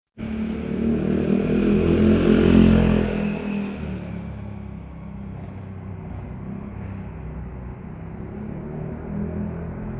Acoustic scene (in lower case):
street